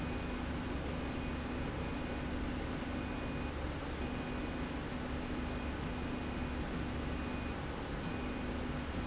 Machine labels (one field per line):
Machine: slide rail